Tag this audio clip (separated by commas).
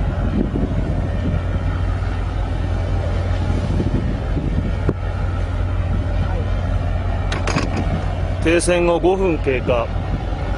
Boat, Speech, Vehicle